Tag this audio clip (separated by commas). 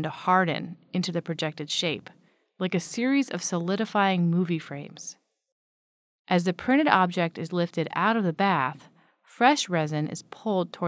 Speech